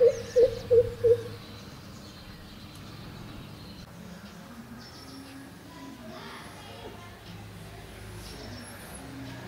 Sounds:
cuckoo bird calling

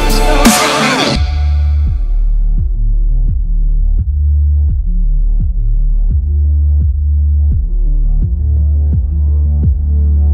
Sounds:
electronic music
music
dubstep

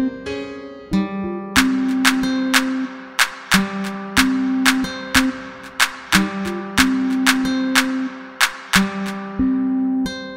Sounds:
hip hop music
rapping
rhythm and blues
afrobeat
music

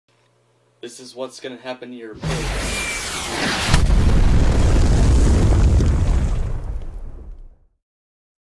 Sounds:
speech

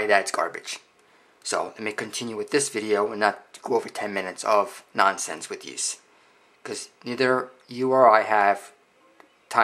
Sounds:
speech

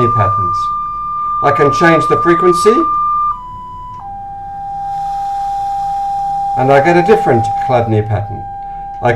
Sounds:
speech

